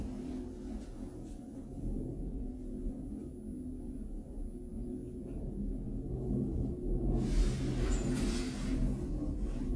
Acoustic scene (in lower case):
elevator